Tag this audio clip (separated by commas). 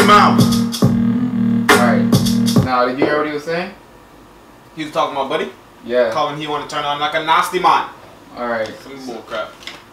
Music, Speech